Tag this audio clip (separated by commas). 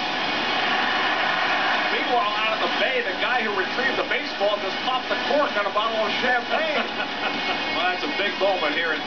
Speech, Music